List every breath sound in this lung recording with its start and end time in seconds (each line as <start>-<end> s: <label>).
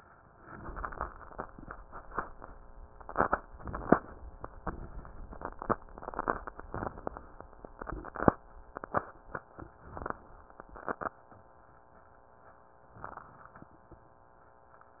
3.48-4.33 s: inhalation
9.67-10.53 s: inhalation
12.91-13.77 s: inhalation